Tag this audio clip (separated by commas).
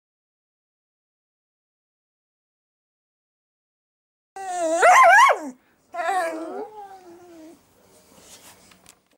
Bow-wow, Domestic animals, Whimper (dog), Dog, Yip, Animal